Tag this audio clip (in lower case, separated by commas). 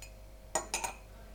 silverware, domestic sounds